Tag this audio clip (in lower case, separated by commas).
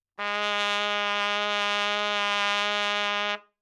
musical instrument, music, trumpet, brass instrument